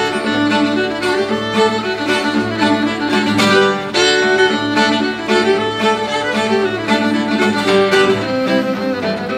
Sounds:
Music, Exciting music

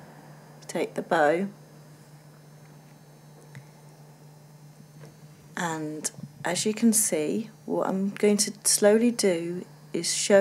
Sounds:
Speech

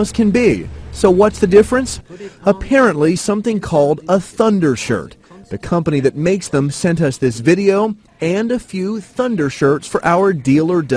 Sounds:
Speech

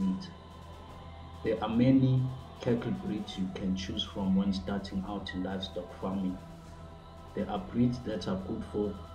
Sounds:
Speech, Music

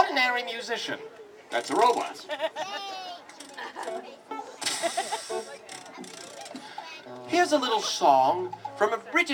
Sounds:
Music, Hiss, Speech

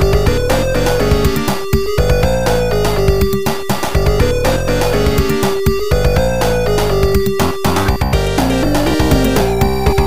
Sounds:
Music, Theme music

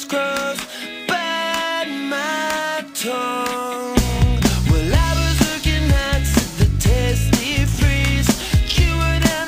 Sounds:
Music

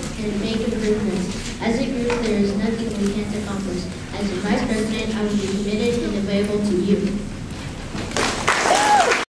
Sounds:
monologue, Child speech, Male speech, Speech

